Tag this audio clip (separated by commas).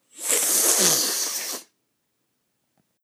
Respiratory sounds